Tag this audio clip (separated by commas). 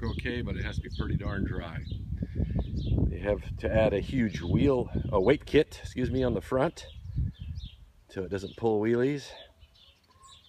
outside, rural or natural, Speech